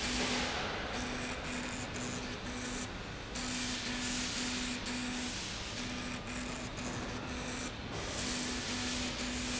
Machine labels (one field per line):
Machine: slide rail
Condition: abnormal